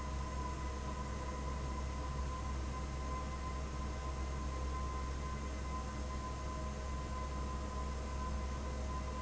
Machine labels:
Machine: fan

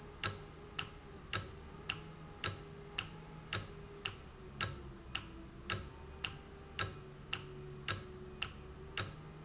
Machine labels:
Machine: valve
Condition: normal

